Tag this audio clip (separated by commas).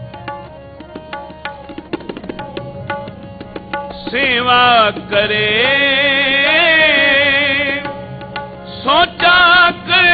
Tabla, Percussion